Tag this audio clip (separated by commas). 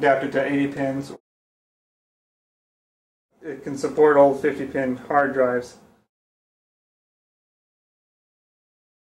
Speech